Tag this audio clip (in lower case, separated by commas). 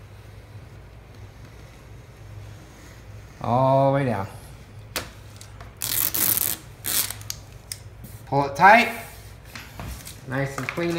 speech